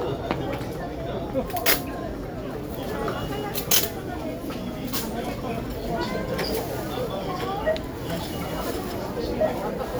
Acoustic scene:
crowded indoor space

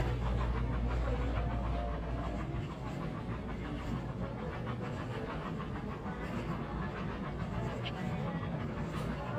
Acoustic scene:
crowded indoor space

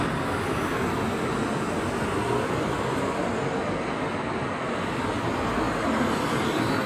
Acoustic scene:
street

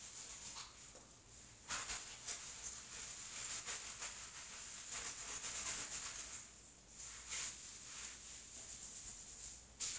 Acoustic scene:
restroom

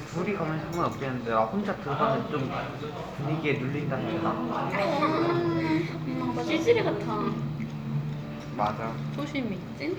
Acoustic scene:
crowded indoor space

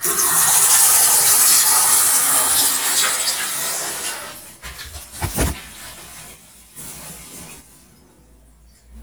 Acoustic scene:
restroom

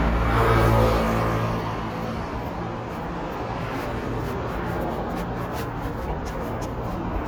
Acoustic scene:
street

